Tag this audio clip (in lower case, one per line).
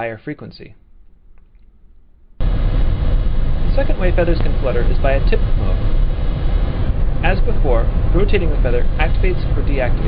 speech